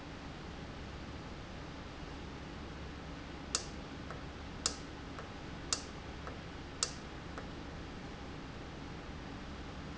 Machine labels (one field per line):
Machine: valve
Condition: normal